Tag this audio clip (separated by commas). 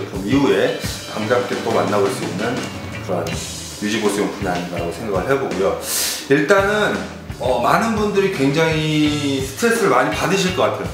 Music, Speech, Musical instrument, Guitar